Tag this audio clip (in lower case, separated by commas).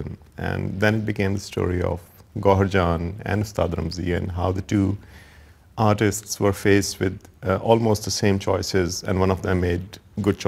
speech